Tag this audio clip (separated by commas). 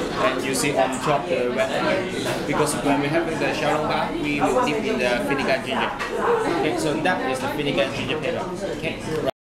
Speech